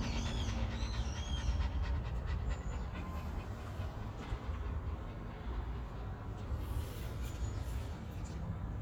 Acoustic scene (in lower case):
park